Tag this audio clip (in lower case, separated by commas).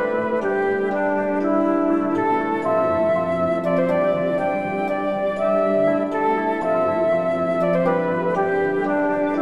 new-age music, music